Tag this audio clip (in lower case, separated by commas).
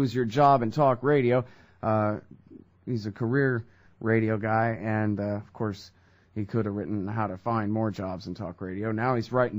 speech